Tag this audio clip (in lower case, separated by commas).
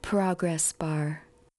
human voice, speech, female speech